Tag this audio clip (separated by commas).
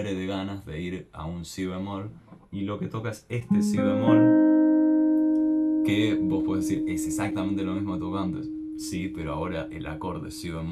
Electric guitar, Guitar, Music, Speech, Musical instrument, Plucked string instrument